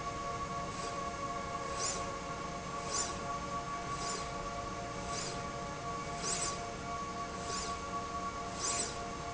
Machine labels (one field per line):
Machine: slide rail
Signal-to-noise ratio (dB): -6 dB